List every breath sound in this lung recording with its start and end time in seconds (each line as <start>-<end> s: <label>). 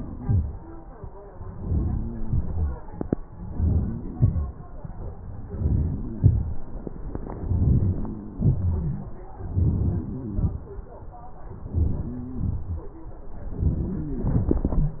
1.52-2.11 s: inhalation
2.27-2.76 s: exhalation
3.54-4.04 s: inhalation
4.20-4.57 s: exhalation
5.54-6.08 s: inhalation
6.20-6.59 s: exhalation
7.48-8.07 s: inhalation
8.37-8.98 s: exhalation
9.57-10.14 s: inhalation
10.37-10.71 s: exhalation
11.76-12.29 s: inhalation
12.47-12.93 s: exhalation